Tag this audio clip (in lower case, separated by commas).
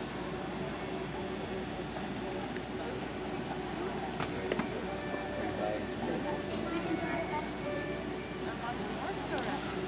speech, music, clip-clop